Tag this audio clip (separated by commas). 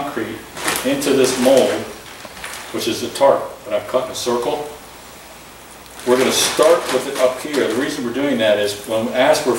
Speech